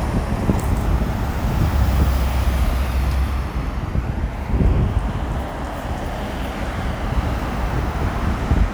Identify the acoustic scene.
street